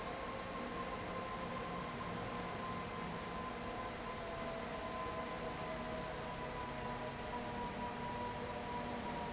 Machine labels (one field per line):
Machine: fan